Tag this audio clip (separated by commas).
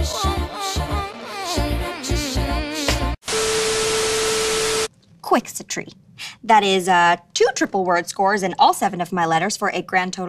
Music, Speech